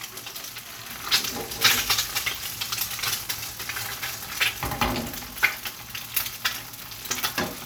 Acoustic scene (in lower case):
kitchen